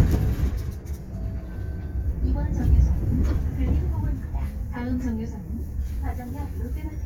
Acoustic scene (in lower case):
bus